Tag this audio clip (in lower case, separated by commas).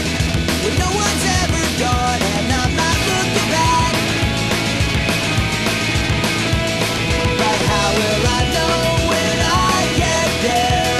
music